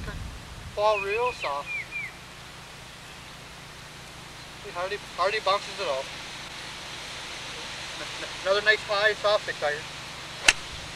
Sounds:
Speech, outside, rural or natural

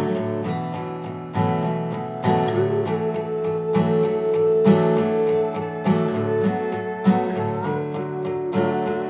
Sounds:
Music

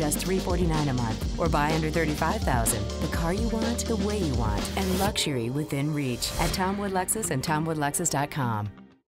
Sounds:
Music, Speech

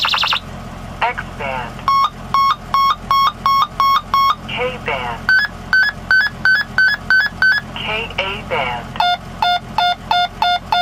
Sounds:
Speech, outside, urban or man-made

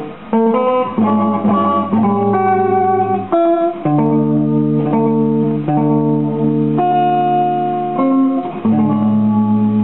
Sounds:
Musical instrument, Electric guitar, Guitar, Plucked string instrument, Music, Strum

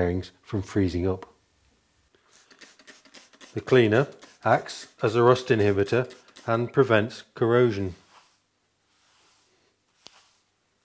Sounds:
Speech

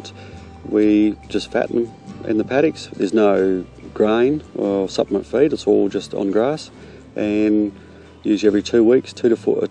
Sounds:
Music, Speech

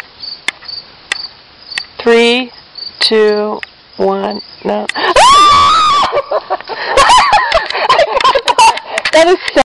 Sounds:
pets, Animal, Speech

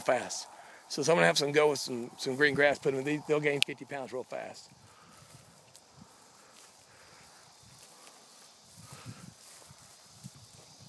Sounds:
Animal, Speech

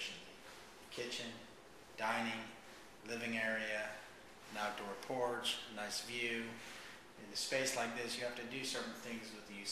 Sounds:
Speech

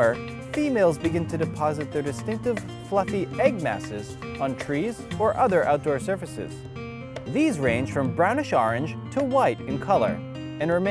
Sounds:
Music, Speech

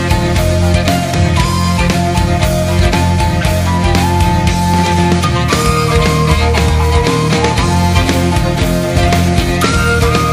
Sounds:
Rock music, Music

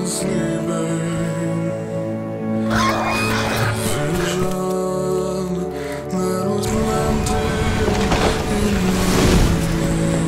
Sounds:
Music

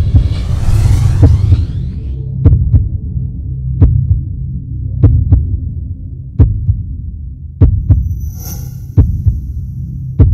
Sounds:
Sound effect, Hiss

